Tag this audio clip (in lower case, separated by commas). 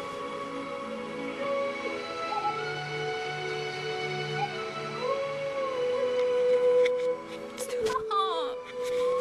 speech, music